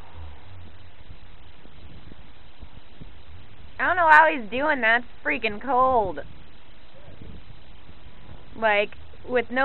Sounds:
speech
vehicle
car

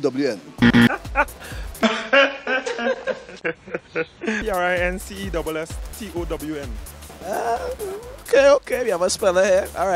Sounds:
music
speech

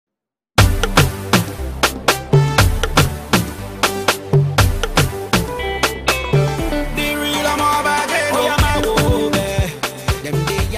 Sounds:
afrobeat
music of africa

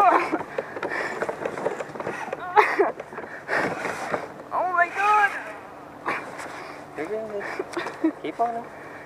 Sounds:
speech
vehicle
kayak
boat

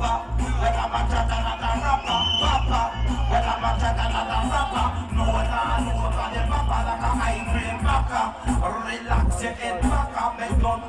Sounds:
music

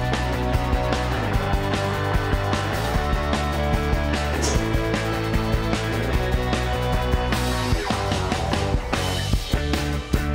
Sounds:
music

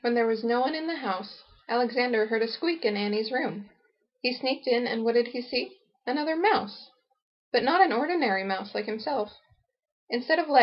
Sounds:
speech

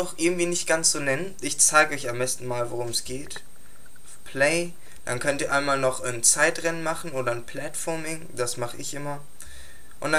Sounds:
speech

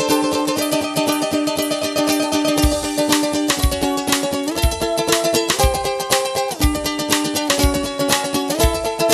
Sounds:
music

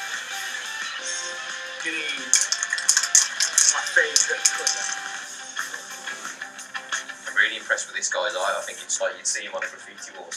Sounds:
speech
spray
music

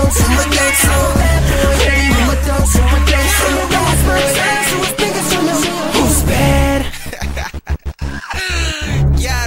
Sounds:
hip hop music
music
speech

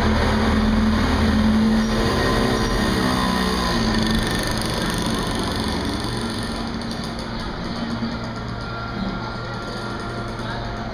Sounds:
outside, urban or man-made

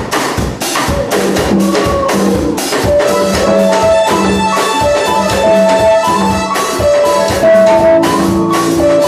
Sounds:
music

